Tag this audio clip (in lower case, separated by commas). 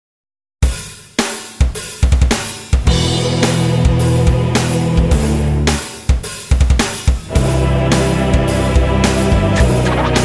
bass drum, music